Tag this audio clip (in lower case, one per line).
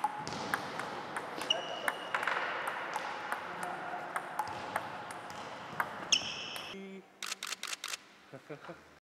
speech